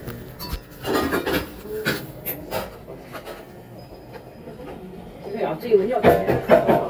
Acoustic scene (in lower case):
cafe